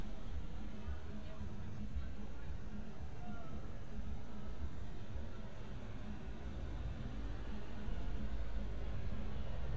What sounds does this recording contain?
person or small group talking